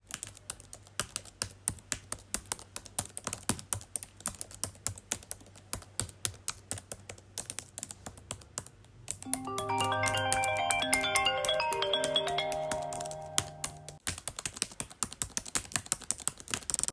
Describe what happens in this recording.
I was chatting on the laptop, got a phone call during it (overlap)